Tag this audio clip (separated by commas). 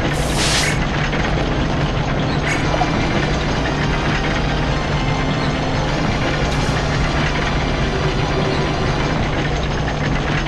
Music